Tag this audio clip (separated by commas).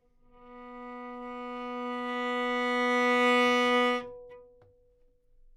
Bowed string instrument, Music, Musical instrument